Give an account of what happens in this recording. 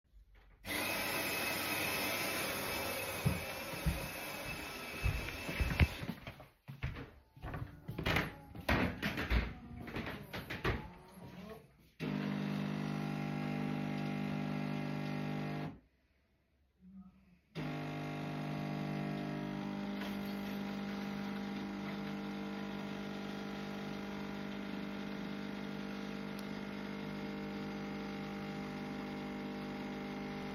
starting the coffemachine, then walking around